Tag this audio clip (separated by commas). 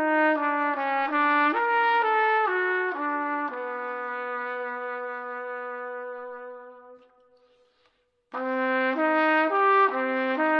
playing trumpet